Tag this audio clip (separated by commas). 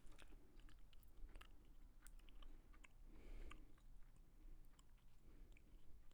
Chewing